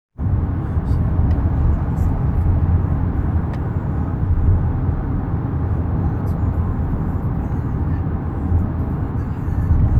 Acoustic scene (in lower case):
car